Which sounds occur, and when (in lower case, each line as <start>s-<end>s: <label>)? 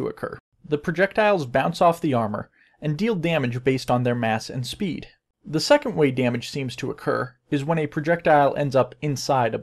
0.0s-0.4s: male speech
0.0s-0.4s: background noise
0.5s-7.3s: background noise
0.6s-2.5s: male speech
2.5s-2.7s: breathing
2.8s-5.1s: male speech
5.4s-7.3s: male speech
7.5s-9.6s: male speech